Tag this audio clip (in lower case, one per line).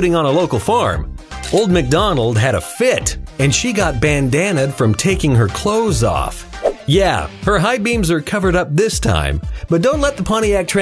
music
speech